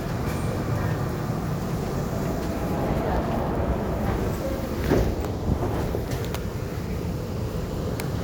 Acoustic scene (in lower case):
subway station